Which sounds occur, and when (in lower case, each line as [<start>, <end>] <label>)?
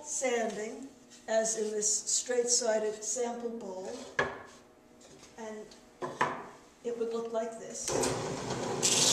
[0.00, 9.12] mechanisms
[6.79, 7.85] female speech
[7.15, 7.29] tick
[7.82, 9.12] power tool